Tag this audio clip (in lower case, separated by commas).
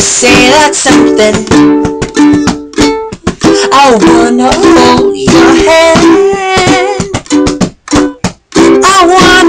playing ukulele